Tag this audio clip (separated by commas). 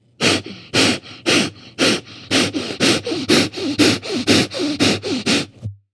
Breathing, Respiratory sounds